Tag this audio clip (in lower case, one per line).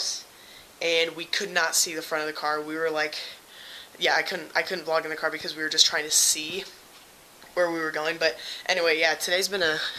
speech